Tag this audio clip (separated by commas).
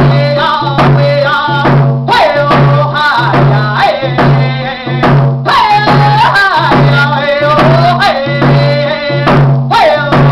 Music